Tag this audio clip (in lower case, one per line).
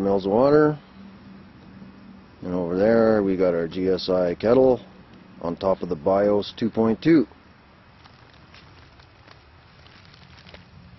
speech